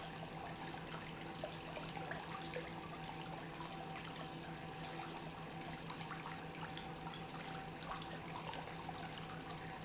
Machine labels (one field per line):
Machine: pump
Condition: normal